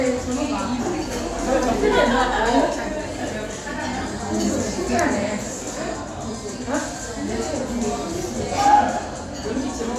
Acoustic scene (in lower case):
crowded indoor space